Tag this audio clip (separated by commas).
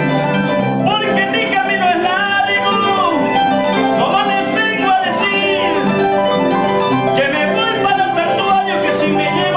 playing harp